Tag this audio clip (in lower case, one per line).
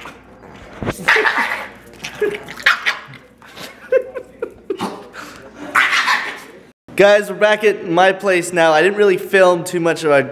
dog
speech
bark